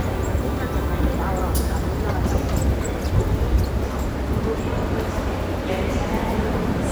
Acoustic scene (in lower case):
subway station